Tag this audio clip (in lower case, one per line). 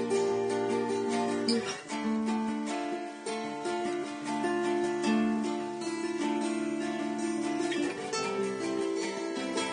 plucked string instrument
acoustic guitar
guitar
strum
musical instrument
music